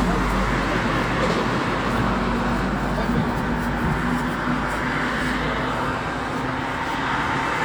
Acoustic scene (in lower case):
street